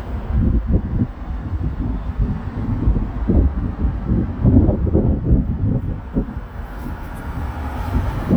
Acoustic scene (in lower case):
street